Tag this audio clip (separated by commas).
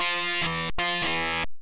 Keyboard (musical), Musical instrument, Organ, Music